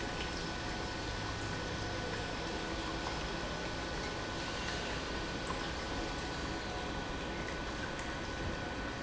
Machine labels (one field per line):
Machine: pump